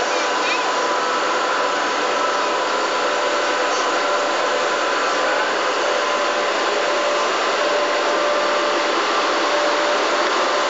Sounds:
Railroad car, Train, Rail transport, Vehicle

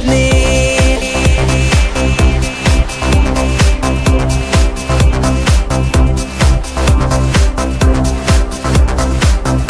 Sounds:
Music

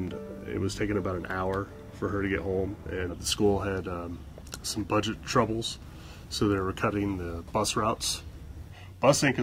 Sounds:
Speech

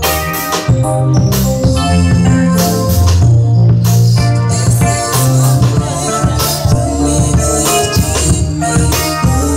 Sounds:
Gospel music, Music

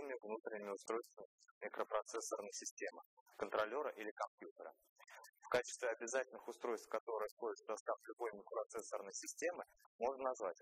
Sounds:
Speech

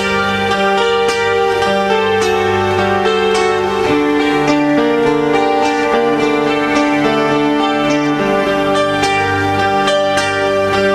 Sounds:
Music, Plucked string instrument, Strum, Musical instrument, Guitar

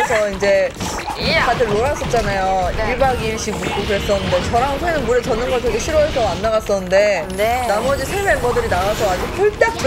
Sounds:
Speech, Music

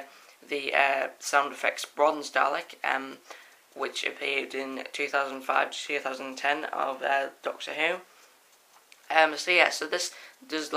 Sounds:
Speech

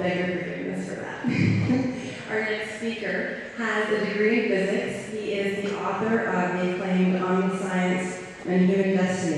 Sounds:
Speech, Female speech

